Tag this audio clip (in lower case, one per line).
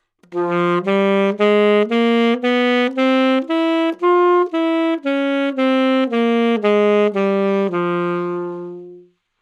music
wind instrument
musical instrument